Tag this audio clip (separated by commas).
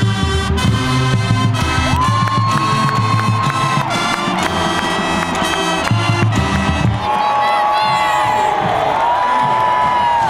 Cheering, Crowd